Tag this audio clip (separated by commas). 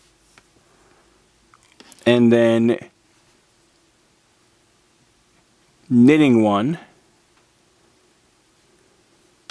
Speech